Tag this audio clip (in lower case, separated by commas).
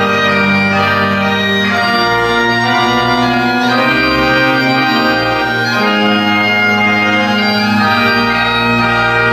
playing bagpipes